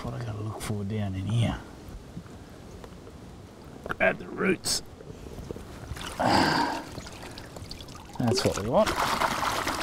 An adult male speaks and grunts, water trickles and gurgles, and then splashing occurs